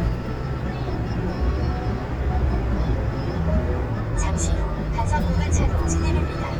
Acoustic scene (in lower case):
car